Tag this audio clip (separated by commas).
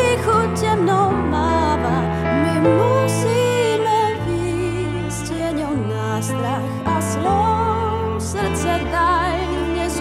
Traditional music, Music, Blues, Soul music